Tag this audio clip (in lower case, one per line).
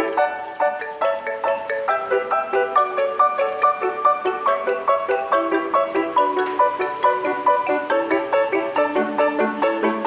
music
inside a small room